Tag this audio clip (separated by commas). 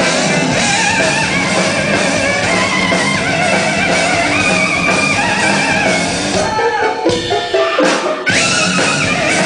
Music